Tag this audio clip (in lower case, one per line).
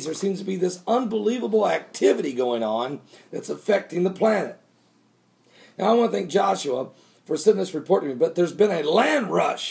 speech